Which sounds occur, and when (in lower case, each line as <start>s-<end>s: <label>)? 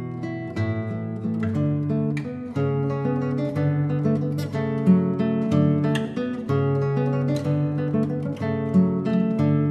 0.0s-9.7s: music